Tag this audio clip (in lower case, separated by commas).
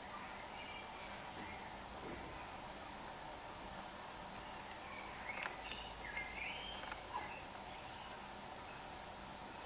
mouse